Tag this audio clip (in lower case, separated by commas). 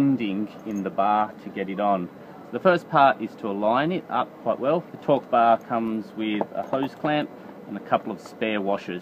speech